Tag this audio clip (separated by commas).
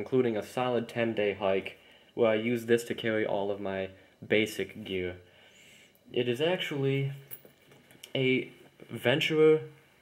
Speech